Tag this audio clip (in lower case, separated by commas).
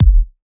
musical instrument, music, drum, percussion, bass drum